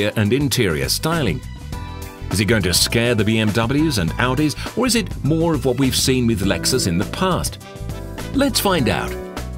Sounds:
music, speech

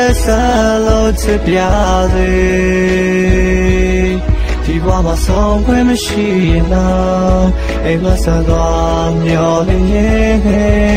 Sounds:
music

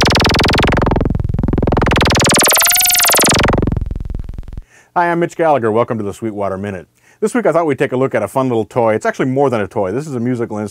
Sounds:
music, speech, synthesizer

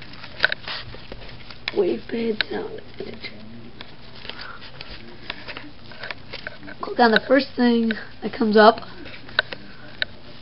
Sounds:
speech

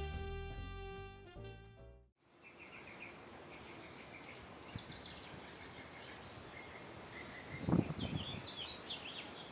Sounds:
animal, music

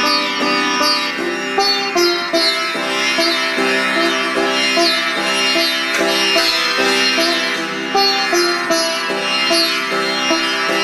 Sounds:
playing sitar

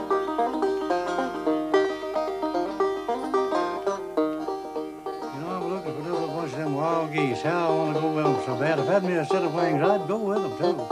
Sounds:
music, speech

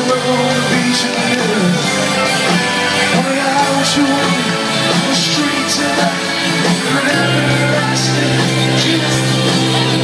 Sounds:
singing, music, inside a large room or hall

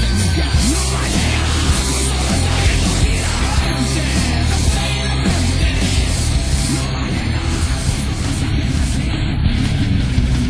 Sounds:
music

